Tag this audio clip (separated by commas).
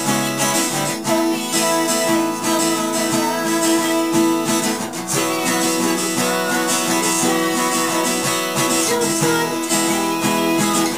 Music, Male singing